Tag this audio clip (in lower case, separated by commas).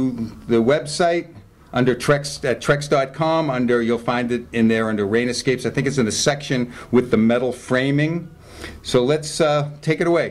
speech